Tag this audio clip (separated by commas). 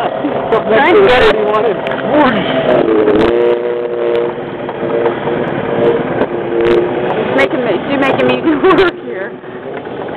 Water vehicle, Speech, Vehicle